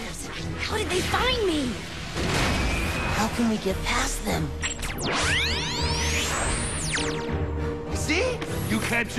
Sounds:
Speech, Music

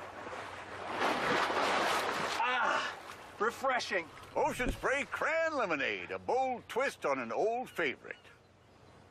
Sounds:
Speech, Waves

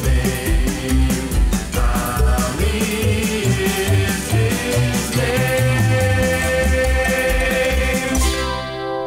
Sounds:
Speech, Music

